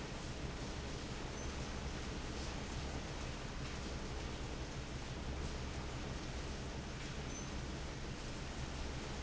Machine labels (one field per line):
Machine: fan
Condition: abnormal